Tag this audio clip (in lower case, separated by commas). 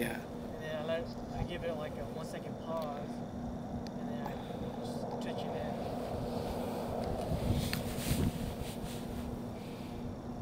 speech, outside, rural or natural